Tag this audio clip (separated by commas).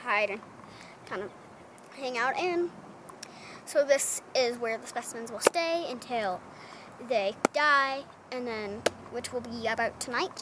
Speech